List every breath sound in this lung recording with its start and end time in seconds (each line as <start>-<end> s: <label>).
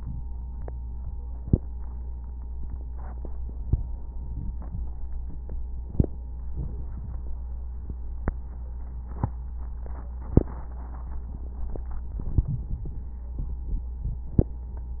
6.52-7.23 s: inhalation
12.13-13.32 s: inhalation
12.13-13.32 s: crackles